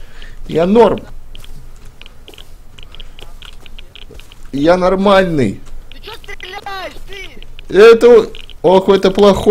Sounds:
Speech

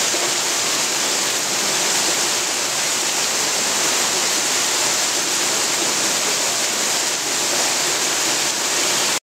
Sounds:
Waterfall, waterfall burbling

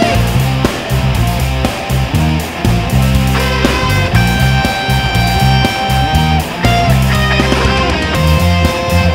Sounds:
Plucked string instrument, Musical instrument, Music, Strum, Guitar

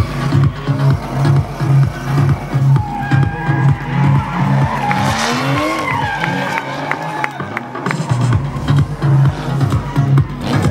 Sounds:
Skidding, Motor vehicle (road), Car, Car passing by, Music, Vehicle

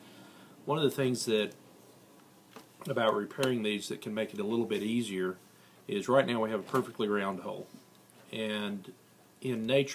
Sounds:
Speech

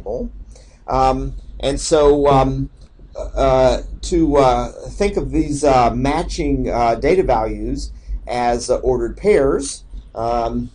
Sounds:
Speech

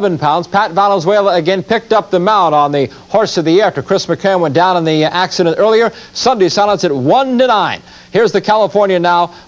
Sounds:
Speech

